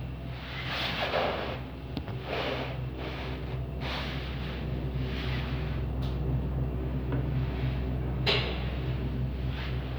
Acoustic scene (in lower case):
elevator